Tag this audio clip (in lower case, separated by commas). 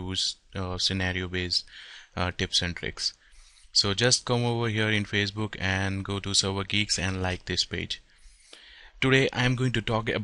speech